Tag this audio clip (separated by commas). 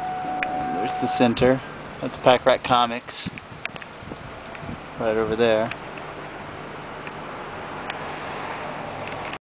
Speech